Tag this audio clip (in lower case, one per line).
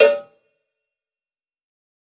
bell
cowbell